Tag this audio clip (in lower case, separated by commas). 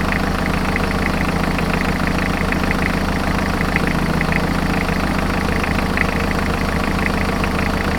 vehicle, engine